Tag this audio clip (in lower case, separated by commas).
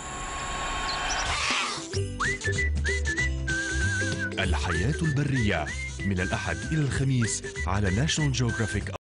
music, speech